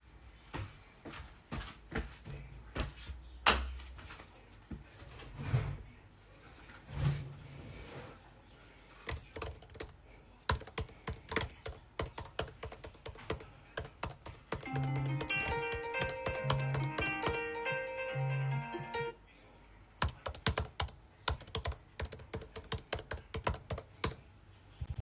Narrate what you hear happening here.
I entered the room and switched on the light.I pulled out my chair, sat down, and began typing on my laptop keyboard. While typing, I received a phone call, which I rejected before continuing to type.